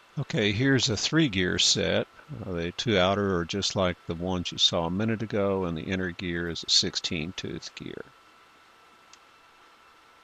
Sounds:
Speech

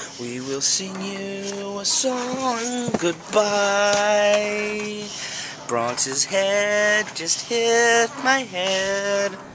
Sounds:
outside, rural or natural, Speech

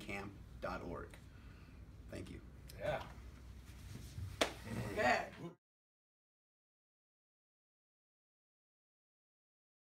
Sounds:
Speech

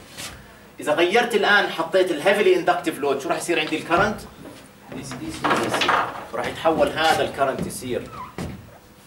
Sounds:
Speech

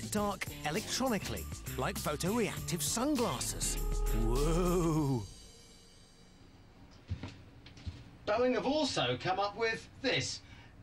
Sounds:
Music, Speech

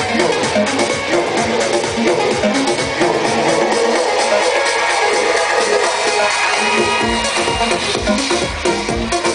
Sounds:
Music

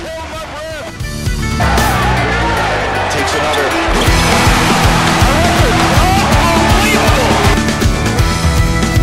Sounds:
Music, Speech

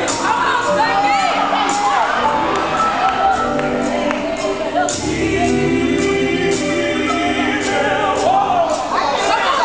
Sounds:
Music, Speech

